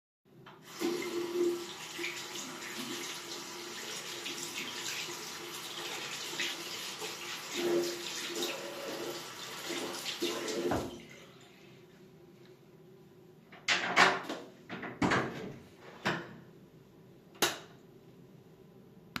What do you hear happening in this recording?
I was washing my hands, then I turned the faucet off, turned off the light switch, then opened the bathroom door.